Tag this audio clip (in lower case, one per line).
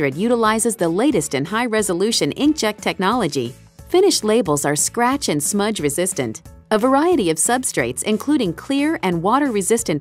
music
speech